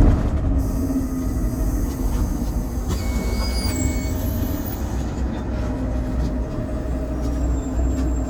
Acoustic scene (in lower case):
bus